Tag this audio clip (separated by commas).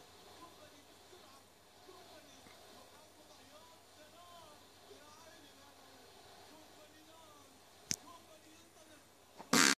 Speech